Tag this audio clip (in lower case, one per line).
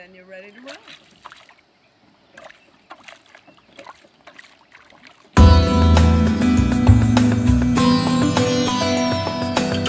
water vehicle
music
vehicle
canoe
speech